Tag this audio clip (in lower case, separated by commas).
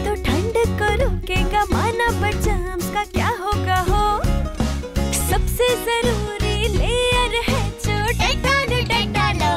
music for children